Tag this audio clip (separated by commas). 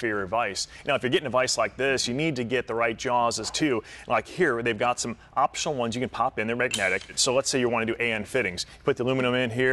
Speech